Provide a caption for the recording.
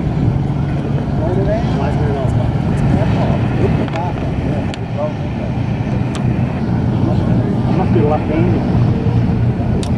Men are conversing over the rumble of an engine